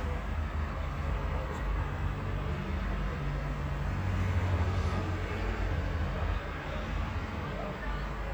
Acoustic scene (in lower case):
residential area